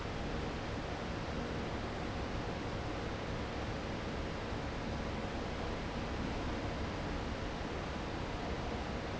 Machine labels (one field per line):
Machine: fan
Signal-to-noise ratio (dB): -6 dB